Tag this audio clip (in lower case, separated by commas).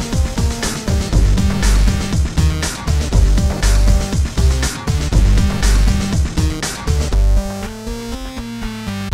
music